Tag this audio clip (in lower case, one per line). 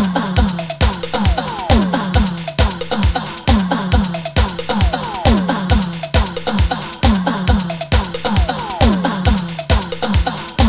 music